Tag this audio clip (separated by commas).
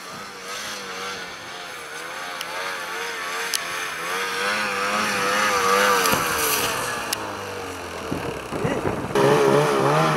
driving snowmobile